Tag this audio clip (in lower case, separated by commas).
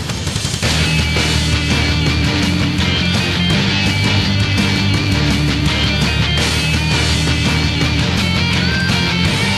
music